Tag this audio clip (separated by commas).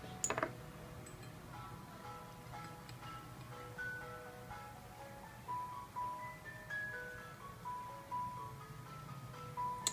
Music, inside a small room